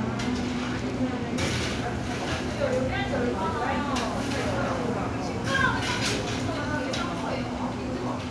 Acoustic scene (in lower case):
cafe